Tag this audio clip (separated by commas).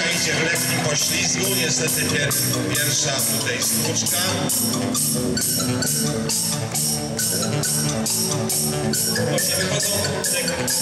Music, Speech